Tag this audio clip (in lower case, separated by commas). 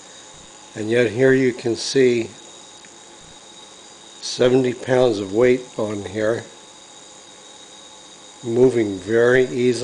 speech, power tool